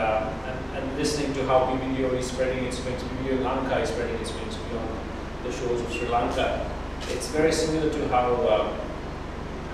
A man is giving a speech